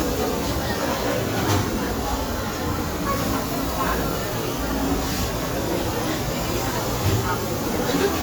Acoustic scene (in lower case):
restaurant